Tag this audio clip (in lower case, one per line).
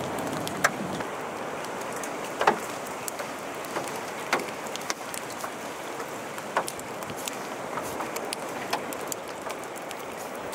tornado roaring